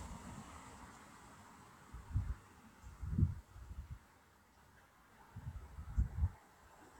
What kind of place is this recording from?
street